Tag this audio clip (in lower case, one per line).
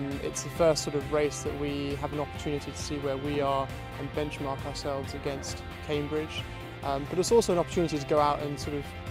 music
speech